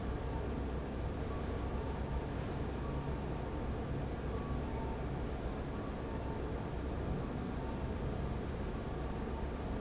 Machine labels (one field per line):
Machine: fan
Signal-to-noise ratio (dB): -6 dB